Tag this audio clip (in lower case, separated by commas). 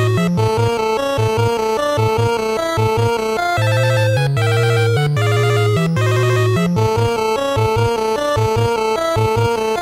background music, music